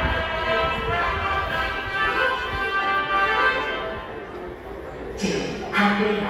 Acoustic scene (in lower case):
subway station